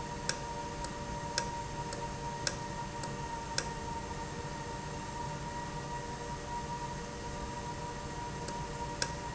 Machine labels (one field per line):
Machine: valve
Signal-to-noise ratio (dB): -6 dB